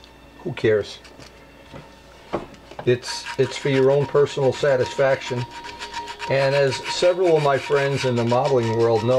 Man speaking with scratching in the background